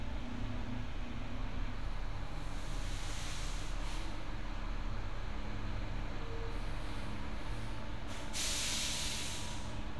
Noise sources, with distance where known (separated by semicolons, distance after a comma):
large-sounding engine, near